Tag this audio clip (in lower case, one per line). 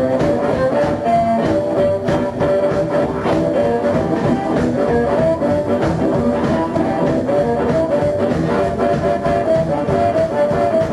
harmonica
woodwind instrument